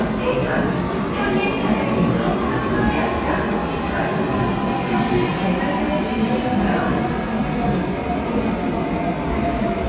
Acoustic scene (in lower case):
subway station